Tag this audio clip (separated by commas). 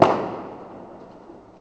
Explosion, Fireworks